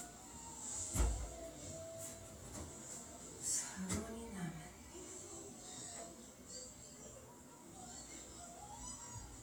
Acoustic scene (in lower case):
kitchen